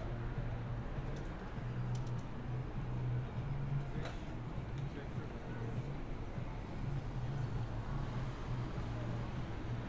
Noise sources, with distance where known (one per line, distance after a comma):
person or small group talking, far